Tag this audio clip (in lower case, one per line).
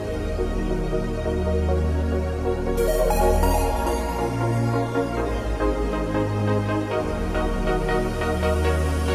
music